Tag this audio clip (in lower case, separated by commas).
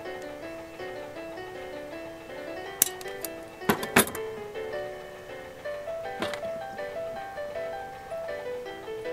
music, outside, urban or man-made